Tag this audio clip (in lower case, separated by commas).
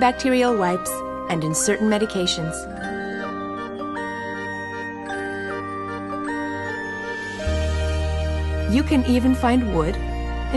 speech, music